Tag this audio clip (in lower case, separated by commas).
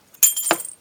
glass, shatter